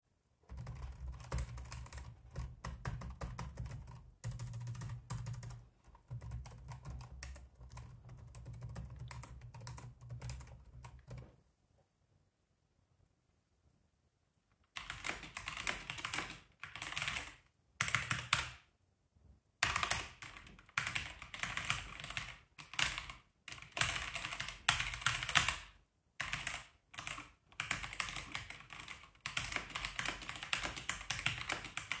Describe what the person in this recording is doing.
Typing on one laptop keyboard. Wait. Typing on a diffrent keyboard.